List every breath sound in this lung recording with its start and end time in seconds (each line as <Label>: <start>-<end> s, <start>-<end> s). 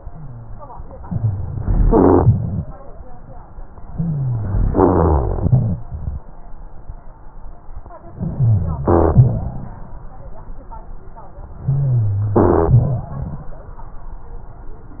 Inhalation: 1.04-1.84 s, 3.91-4.71 s, 8.12-8.86 s, 11.67-12.37 s
Exhalation: 1.84-2.73 s, 4.73-5.81 s, 8.86-9.91 s, 12.37-13.45 s
Rhonchi: 1.04-1.84 s, 3.91-4.71 s, 8.12-8.86 s, 11.67-12.37 s